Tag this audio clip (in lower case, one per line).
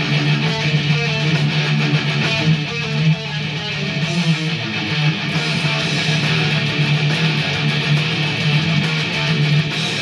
musical instrument
plucked string instrument
music
strum
guitar